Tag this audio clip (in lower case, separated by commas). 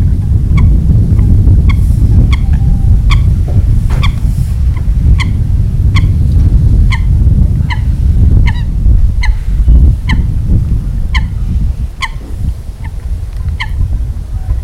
bird, fowl, wild animals, livestock, animal